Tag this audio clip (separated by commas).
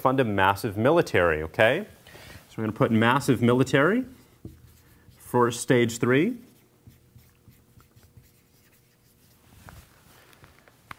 inside a small room, Speech